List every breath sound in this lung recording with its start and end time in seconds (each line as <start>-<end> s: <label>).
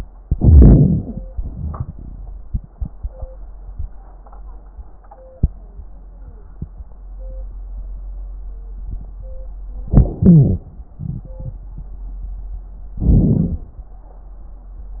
0.21-1.17 s: inhalation
1.27-2.23 s: exhalation
9.88-10.23 s: inhalation
10.23-10.66 s: exhalation
10.23-10.66 s: wheeze
12.98-13.66 s: inhalation
12.98-13.66 s: crackles